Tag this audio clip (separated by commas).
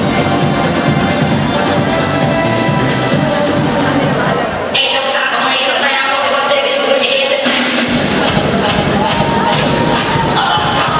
Cheering, Speech, Music